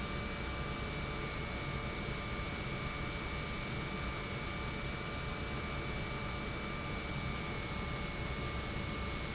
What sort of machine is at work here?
pump